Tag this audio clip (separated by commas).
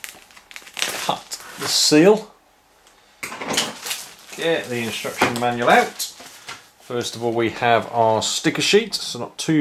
Speech, inside a small room